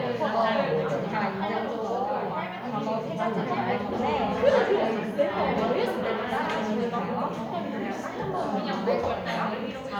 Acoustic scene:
crowded indoor space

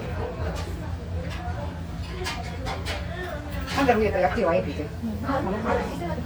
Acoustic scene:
restaurant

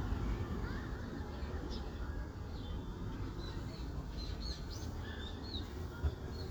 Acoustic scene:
residential area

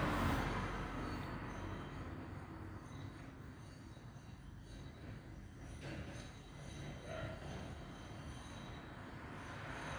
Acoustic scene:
street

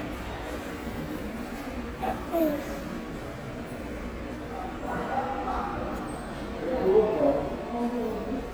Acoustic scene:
subway station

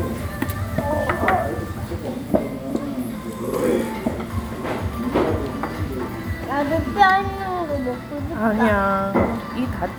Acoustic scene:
restaurant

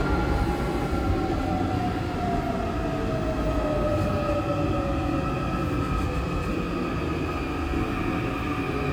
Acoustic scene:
subway train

